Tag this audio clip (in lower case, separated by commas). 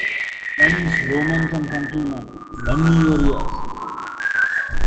speech, human voice